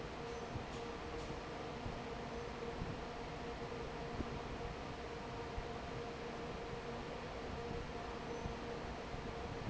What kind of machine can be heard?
fan